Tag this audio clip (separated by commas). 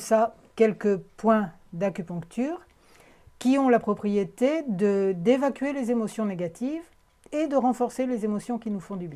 Speech